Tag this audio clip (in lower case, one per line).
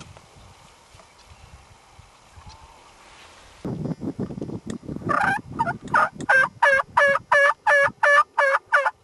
gobble
fowl
turkey